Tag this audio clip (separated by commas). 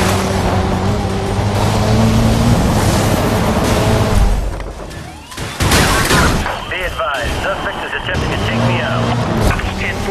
auto racing, Car, Speech, Vehicle